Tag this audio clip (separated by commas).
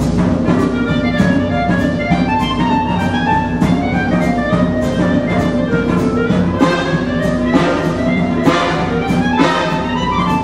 Orchestra